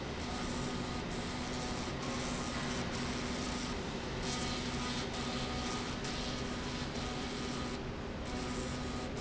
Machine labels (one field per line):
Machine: slide rail